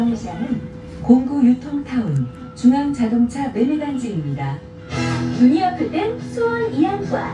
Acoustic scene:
bus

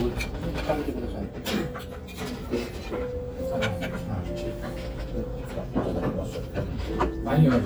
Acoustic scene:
restaurant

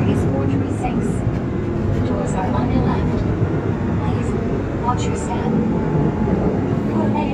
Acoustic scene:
subway train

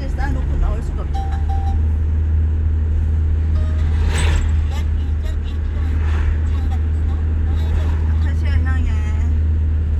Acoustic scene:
car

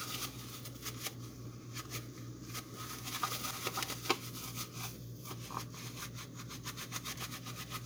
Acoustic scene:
kitchen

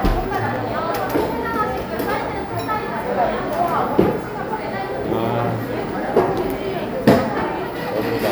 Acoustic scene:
cafe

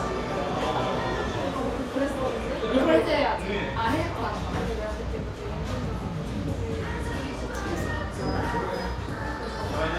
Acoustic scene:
cafe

